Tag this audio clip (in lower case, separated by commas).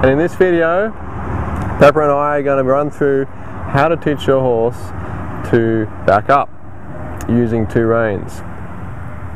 speech